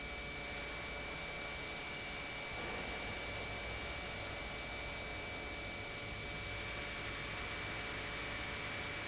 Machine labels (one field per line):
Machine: pump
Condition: normal